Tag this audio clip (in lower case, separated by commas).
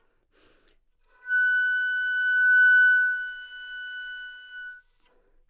wind instrument, music, musical instrument